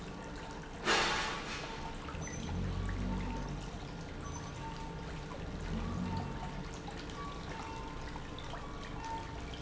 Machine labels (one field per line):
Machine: pump